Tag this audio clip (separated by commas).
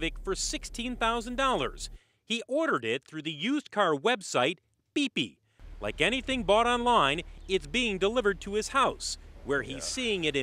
Speech